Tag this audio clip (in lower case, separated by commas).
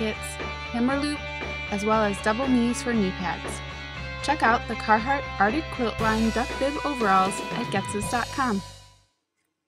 speech, music